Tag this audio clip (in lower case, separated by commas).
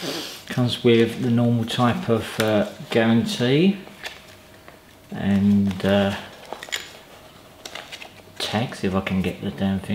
speech, inside a small room